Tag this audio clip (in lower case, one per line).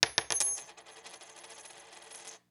home sounds
coin (dropping)